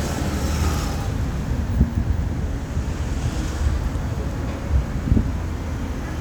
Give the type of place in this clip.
street